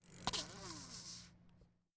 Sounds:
vehicle, bicycle

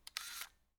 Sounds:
mechanisms, camera

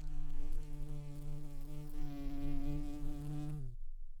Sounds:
buzz, wild animals, animal, insect

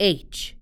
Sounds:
speech, human voice, female speech

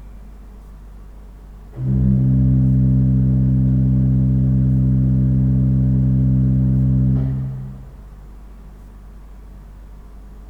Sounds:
keyboard (musical), musical instrument, organ, music

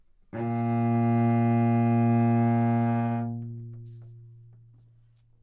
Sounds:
bowed string instrument, musical instrument, music

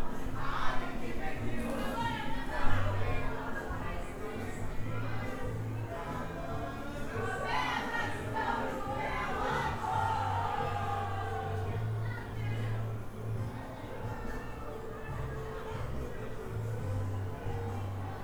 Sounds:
human voice, singing

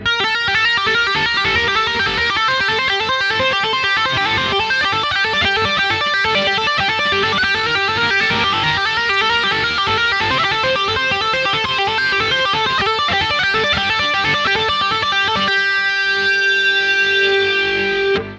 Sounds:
electric guitar, musical instrument, music, guitar, plucked string instrument

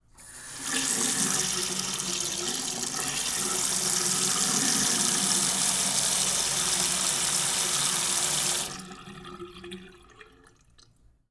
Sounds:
sink (filling or washing), faucet, domestic sounds

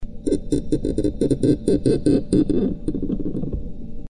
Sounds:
squeak

